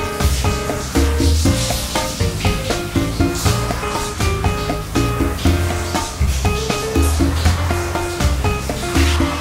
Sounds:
Music

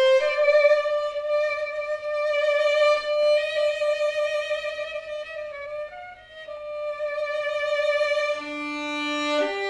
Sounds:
fiddle, Musical instrument, Music

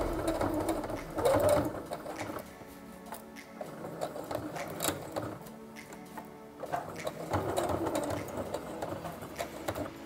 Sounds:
using sewing machines

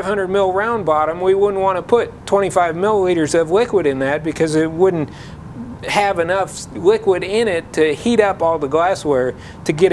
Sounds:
Speech

